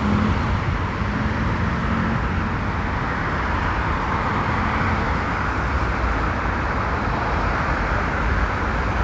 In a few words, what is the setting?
street